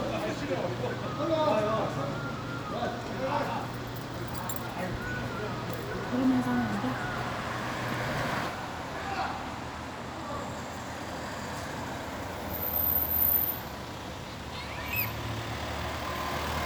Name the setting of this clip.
street